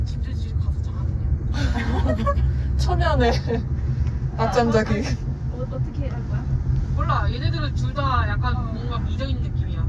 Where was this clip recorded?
in a car